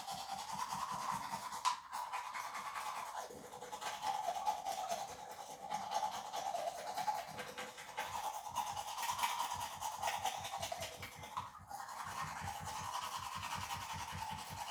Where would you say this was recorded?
in a restroom